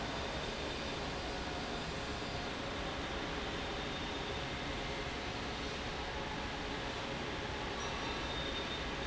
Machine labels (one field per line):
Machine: fan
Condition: abnormal